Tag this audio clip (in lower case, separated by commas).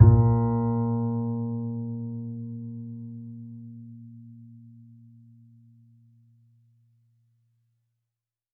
musical instrument, bowed string instrument, music